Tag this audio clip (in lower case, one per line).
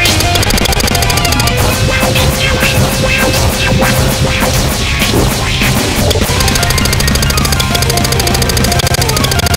music